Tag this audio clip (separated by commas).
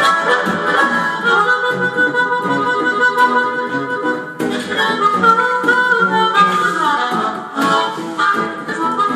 playing harmonica